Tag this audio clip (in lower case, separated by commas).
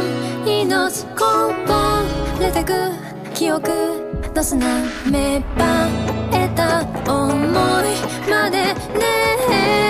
plucked string instrument, music, musical instrument